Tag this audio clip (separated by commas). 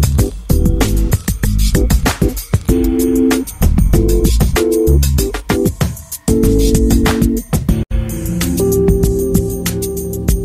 Music